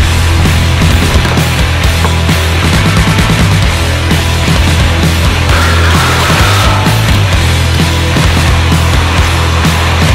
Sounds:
Bicycle, Music

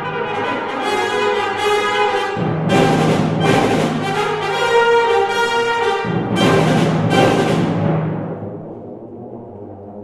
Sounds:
Classical music, Orchestra, Brass instrument, Music, Timpani

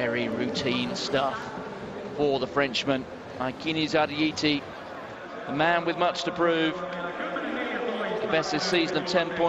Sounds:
Speech, outside, urban or man-made

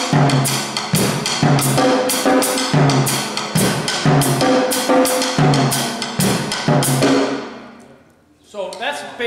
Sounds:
Musical instrument, Bass drum, Drum, Music, Drum kit

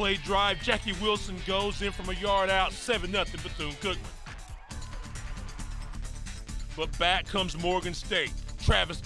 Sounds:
Speech, Music

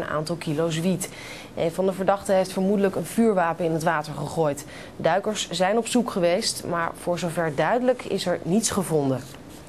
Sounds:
Speech

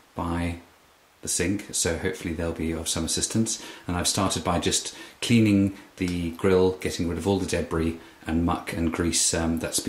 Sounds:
Speech

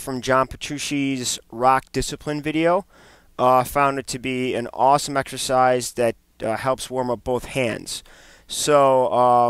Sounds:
Speech

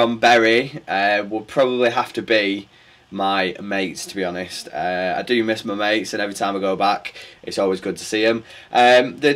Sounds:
Speech

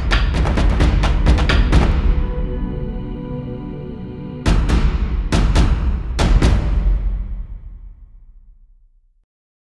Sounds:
Music

